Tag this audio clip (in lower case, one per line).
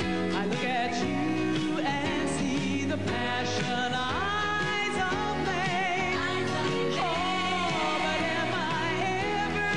music